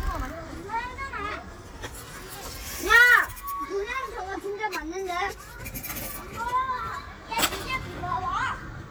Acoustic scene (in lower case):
park